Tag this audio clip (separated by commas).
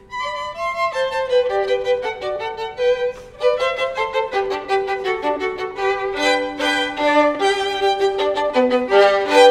Musical instrument, Music, Violin